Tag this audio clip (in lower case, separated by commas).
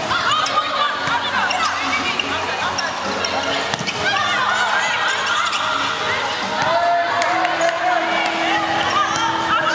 speech, music